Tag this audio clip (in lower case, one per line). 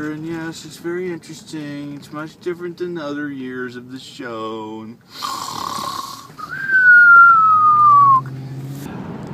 outside, urban or man-made
speech